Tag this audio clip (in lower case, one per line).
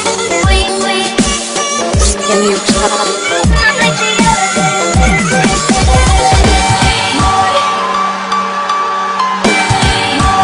music
dubstep